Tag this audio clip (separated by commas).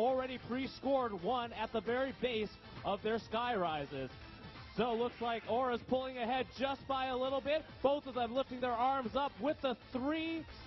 Speech